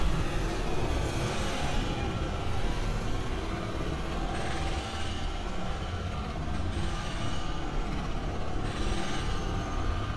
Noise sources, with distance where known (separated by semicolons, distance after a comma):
unidentified impact machinery, near